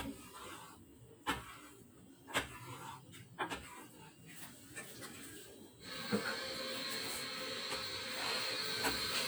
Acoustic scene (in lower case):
kitchen